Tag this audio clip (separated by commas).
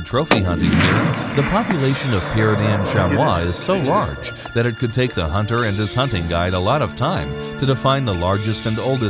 Music, Speech